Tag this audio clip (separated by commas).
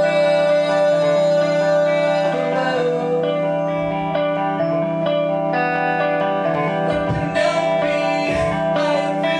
Music